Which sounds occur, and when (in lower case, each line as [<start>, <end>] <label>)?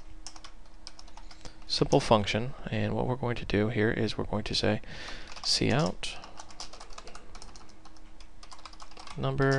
[0.00, 9.55] mechanisms
[0.25, 1.66] computer keyboard
[1.67, 4.79] man speaking
[4.85, 5.45] breathing
[5.24, 9.55] computer keyboard
[5.38, 6.21] man speaking
[9.10, 9.55] man speaking